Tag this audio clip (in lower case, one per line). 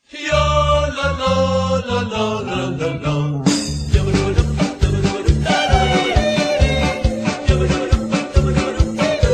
yodelling